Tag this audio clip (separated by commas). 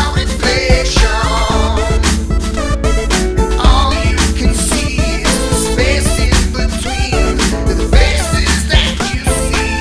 Independent music, Music